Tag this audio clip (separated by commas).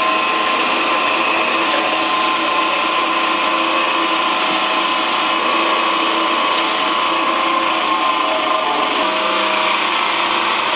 Tools, Power tool